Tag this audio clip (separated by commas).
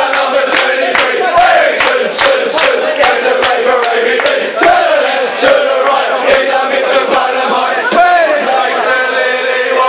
Choir, Speech, Rapping